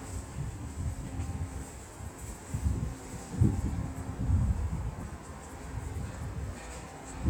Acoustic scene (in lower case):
subway station